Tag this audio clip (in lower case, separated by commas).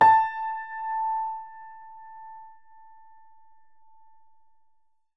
piano, music, musical instrument, keyboard (musical)